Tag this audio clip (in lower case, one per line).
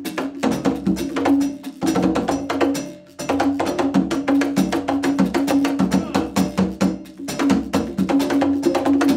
musical instrument
music
percussion
drum
drum kit